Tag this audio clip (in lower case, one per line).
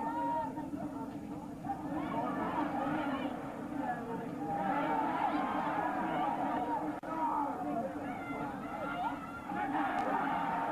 chatter
speech
outside, urban or man-made